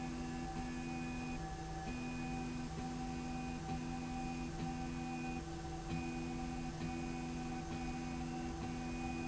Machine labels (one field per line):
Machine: slide rail